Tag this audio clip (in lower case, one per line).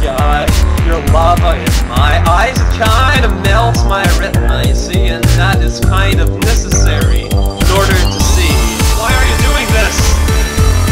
music